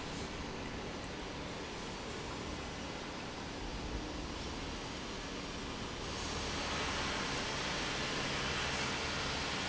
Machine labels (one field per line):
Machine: pump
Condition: normal